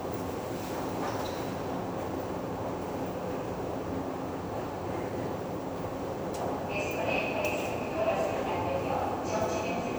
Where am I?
in a subway station